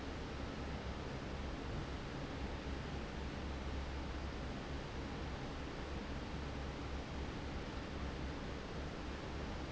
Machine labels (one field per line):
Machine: fan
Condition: normal